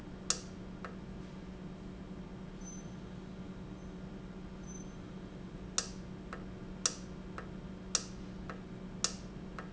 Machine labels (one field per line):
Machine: valve